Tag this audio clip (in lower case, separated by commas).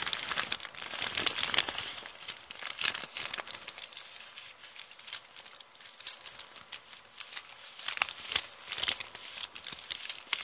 ripping paper